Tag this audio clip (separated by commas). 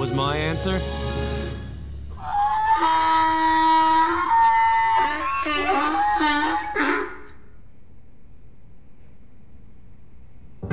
Music, Speech, Animal